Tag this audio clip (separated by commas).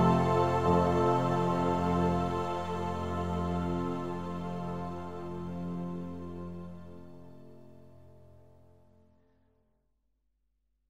Music, New-age music